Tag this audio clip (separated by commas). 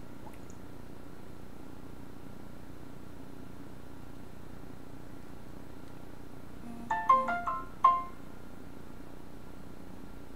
inside a small room